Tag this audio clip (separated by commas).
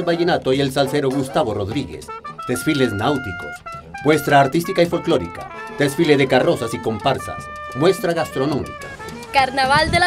Speech, Music, Television